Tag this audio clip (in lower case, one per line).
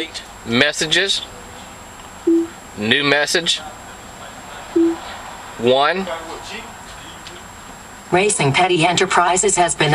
speech
woman speaking
man speaking